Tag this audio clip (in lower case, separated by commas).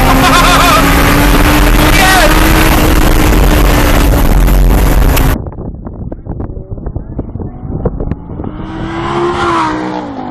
vehicle, car, race car